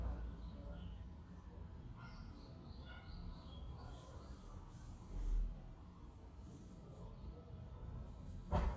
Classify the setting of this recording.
residential area